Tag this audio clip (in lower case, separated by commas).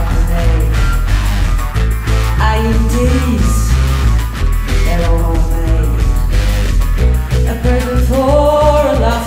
singing, music